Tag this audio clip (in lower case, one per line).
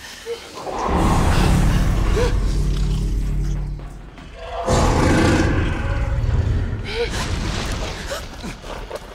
dinosaurs bellowing